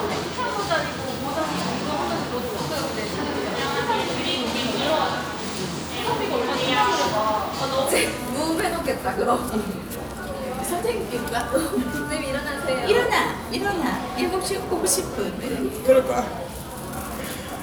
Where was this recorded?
in a cafe